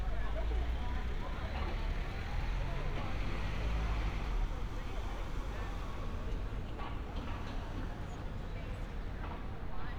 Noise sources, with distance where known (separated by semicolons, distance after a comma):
medium-sounding engine, near; person or small group talking